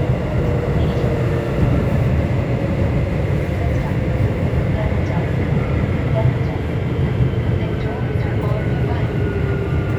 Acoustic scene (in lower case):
subway train